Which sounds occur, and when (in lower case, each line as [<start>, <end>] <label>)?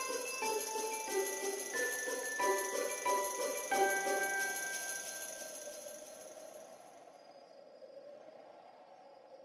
[0.00, 4.64] music
[0.00, 7.04] bell
[0.00, 9.44] background noise
[7.07, 9.44] wind chime